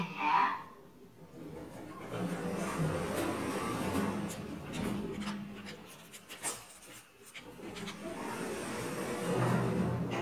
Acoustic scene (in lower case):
elevator